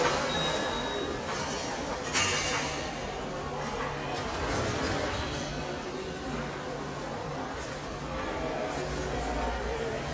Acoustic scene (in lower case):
subway station